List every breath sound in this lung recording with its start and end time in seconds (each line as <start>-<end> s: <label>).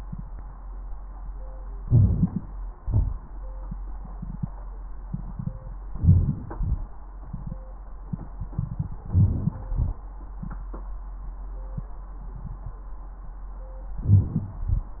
1.83-2.47 s: inhalation
2.79-3.19 s: exhalation
5.96-6.37 s: inhalation
6.55-6.96 s: exhalation
9.12-9.66 s: inhalation
9.65-10.05 s: exhalation
13.99-14.60 s: inhalation
14.60-15.00 s: exhalation